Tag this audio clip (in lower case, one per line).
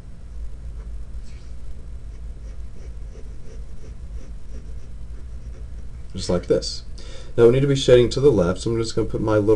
writing
speech